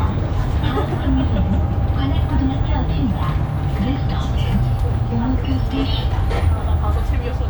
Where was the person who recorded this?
on a bus